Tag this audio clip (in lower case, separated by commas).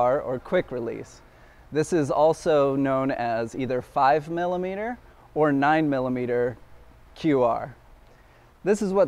speech